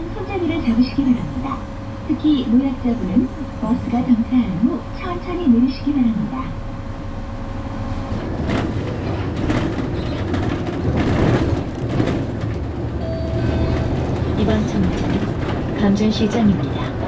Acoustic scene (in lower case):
bus